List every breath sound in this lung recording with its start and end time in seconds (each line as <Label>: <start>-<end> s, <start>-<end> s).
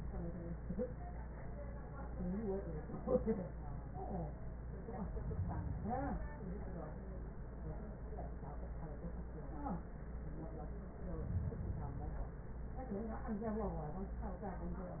Inhalation: 5.07-6.37 s, 11.07-12.26 s